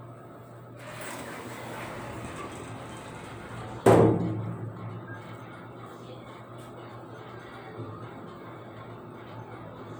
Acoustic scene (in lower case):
elevator